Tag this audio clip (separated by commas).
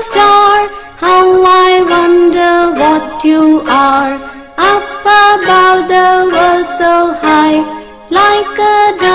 Theme music, Music